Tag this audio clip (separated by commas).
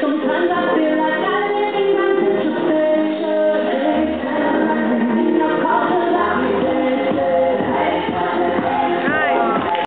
Speech, Music